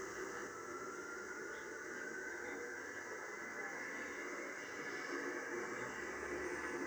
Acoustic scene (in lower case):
subway train